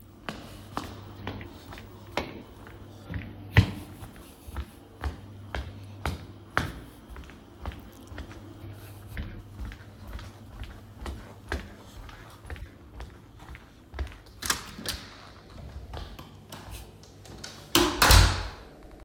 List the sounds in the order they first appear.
footsteps, door